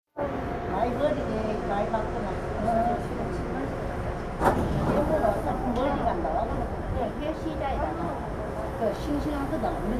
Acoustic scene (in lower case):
subway train